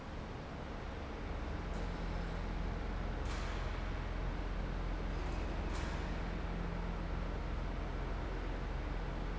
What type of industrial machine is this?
fan